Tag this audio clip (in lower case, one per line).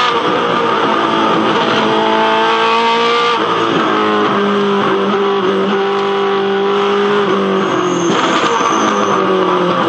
car
vehicle